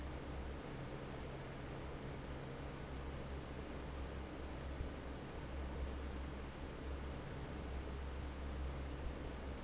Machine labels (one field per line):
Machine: fan